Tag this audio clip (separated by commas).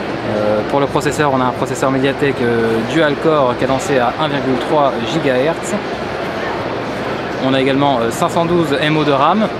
Speech